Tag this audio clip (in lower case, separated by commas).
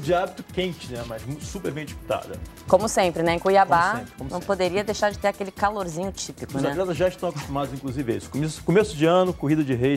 music, inside a large room or hall, speech